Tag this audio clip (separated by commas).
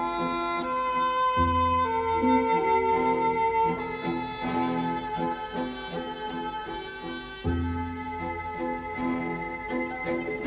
Tender music, Music